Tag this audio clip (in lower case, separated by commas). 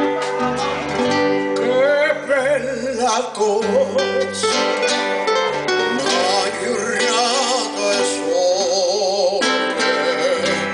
music, male singing